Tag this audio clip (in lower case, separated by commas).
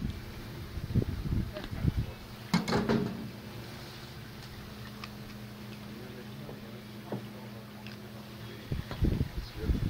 speech